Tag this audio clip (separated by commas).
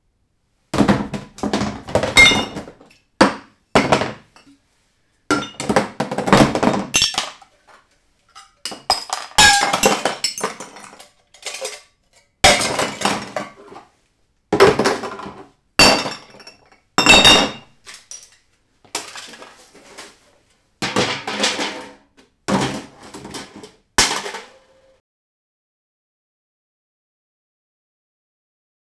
Glass, Chink